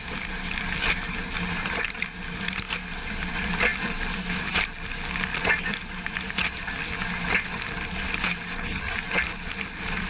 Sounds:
water

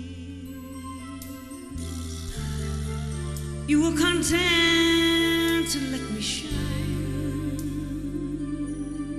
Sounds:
music

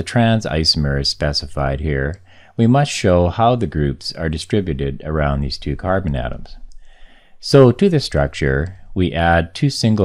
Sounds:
speech

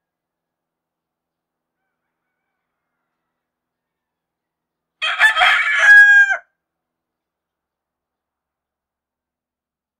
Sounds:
rooster, bird, cock-a-doodle-doo, bird call, fowl

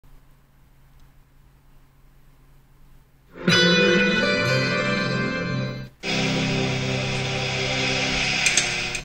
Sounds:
television, music

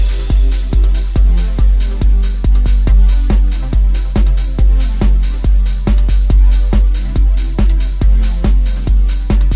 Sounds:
music

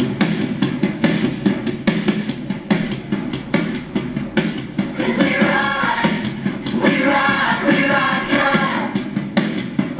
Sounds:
female singing, music, male singing

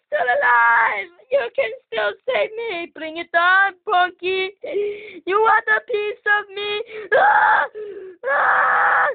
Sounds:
speech

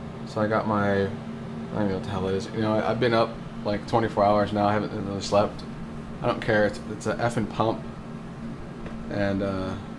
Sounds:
speech

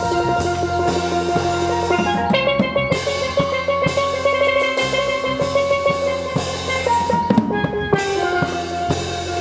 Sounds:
playing steelpan

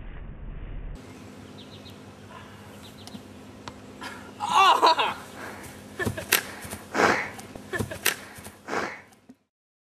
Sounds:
outside, rural or natural, snort

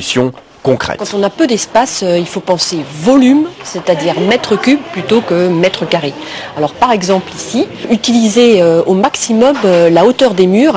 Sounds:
speech

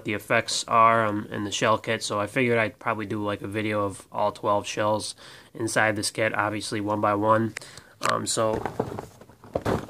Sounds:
speech

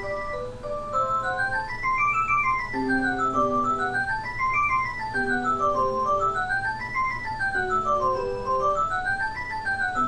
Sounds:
music, tick-tock

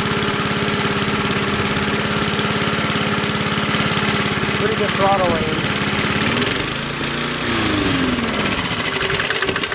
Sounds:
speech, lawn mowing, lawn mower

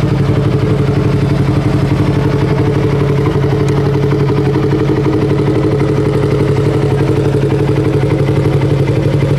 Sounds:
outside, rural or natural, vehicle

